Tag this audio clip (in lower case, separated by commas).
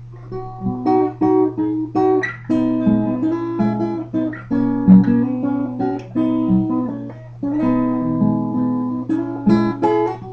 music